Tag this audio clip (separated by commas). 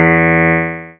Music, Keyboard (musical), Piano, Musical instrument